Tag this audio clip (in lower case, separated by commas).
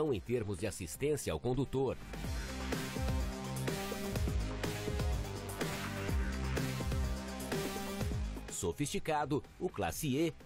music, speech